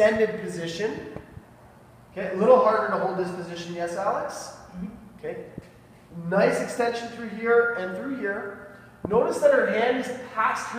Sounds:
speech

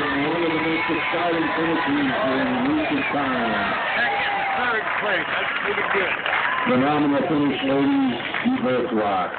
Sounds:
speech, outside, urban or man-made

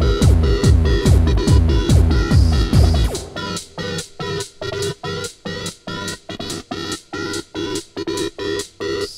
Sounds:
electronic music, techno, music

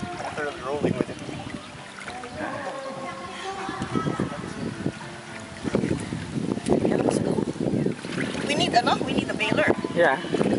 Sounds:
wind, wind noise (microphone)

